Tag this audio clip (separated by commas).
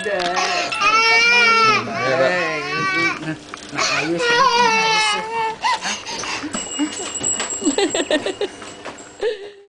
Speech